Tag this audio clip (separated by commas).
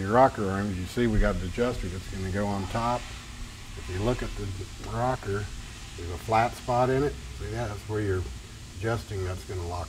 Speech, inside a large room or hall